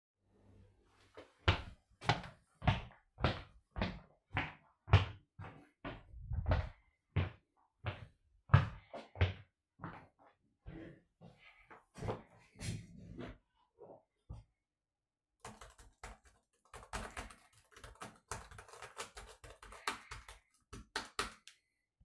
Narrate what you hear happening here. I went to my desk. Sat on my chair and started typing